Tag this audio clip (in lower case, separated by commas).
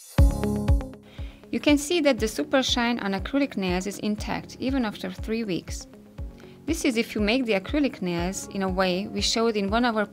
speech, music